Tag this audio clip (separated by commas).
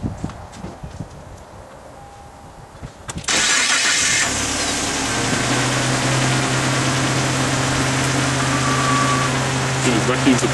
Speech